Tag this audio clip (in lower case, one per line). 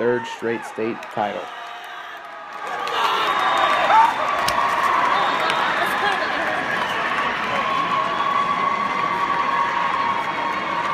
speech